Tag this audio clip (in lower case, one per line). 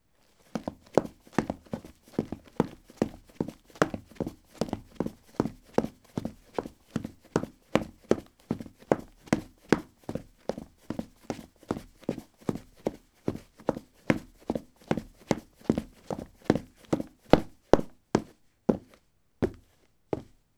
run